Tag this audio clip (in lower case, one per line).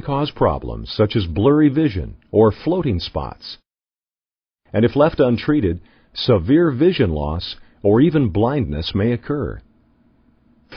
speech synthesizer
speech